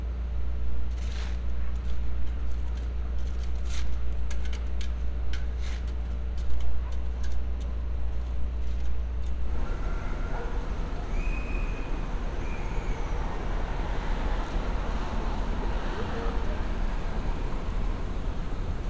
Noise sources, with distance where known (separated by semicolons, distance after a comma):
engine of unclear size; dog barking or whining